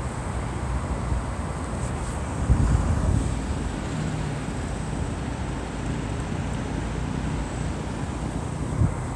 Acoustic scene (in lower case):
street